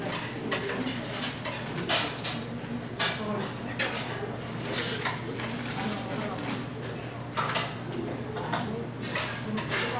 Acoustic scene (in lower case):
restaurant